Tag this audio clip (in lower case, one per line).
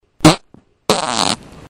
fart